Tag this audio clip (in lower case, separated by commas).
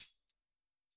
percussion, music, musical instrument, tambourine